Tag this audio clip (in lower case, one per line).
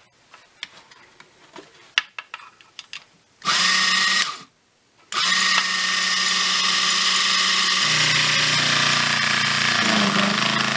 tools
drill